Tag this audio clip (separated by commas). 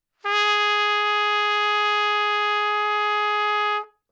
Brass instrument, Trumpet, Musical instrument, Music